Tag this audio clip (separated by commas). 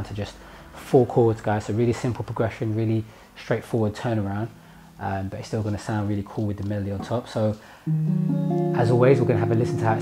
Plucked string instrument, Music, Speech, Strum, Musical instrument, Guitar